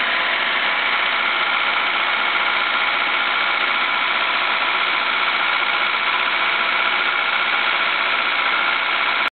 Working engine of vehicle